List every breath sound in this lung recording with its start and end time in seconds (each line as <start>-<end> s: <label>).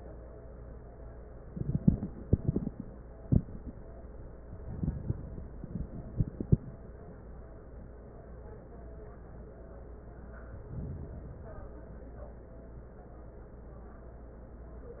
10.37-11.87 s: inhalation